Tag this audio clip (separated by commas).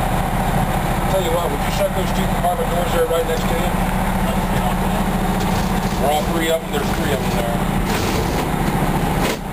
Heavy engine (low frequency), Speech